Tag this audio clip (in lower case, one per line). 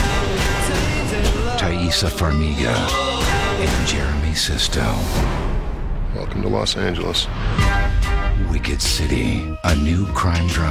sound effect